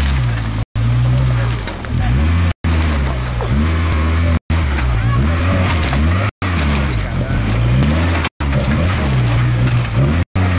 An engine is revving up and tires are spinning